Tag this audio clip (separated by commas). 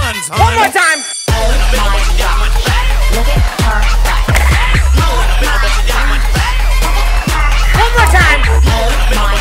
Music